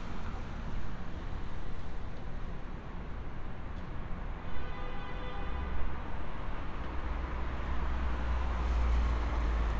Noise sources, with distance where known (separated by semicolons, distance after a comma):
car horn, far